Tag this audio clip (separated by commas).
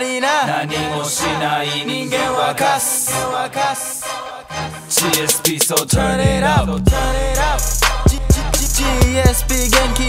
Music